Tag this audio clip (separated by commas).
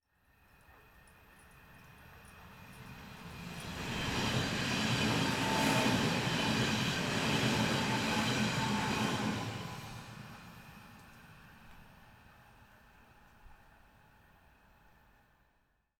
Train, Rail transport, Vehicle